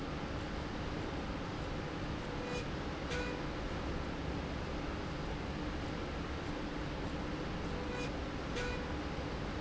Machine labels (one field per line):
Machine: slide rail